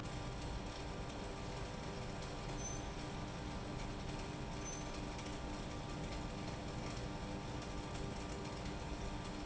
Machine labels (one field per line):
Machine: pump